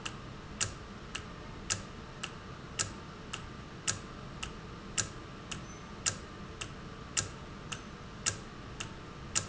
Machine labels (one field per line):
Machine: valve